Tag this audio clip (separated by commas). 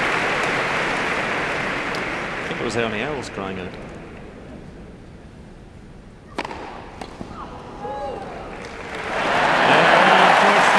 playing tennis